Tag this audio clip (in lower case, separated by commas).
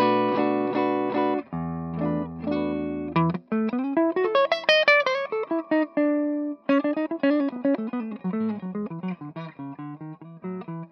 music, musical instrument, guitar, acoustic guitar